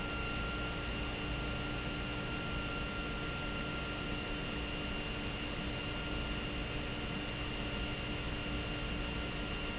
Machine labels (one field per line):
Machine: pump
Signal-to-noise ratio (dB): -6 dB